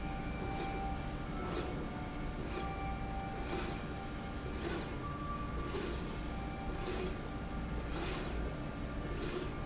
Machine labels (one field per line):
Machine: slide rail